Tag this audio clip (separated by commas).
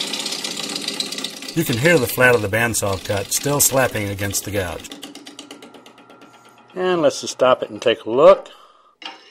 Wood, Speech, Tools